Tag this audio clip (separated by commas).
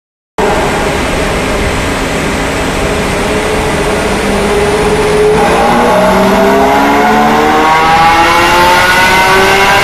Vehicle, auto racing, Car